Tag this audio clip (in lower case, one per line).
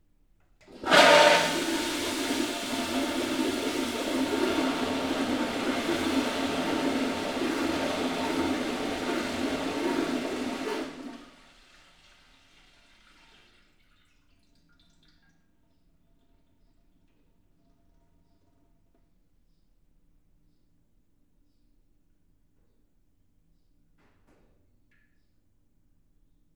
toilet flush
domestic sounds